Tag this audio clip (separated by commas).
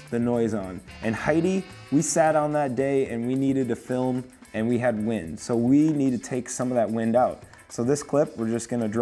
Music, Speech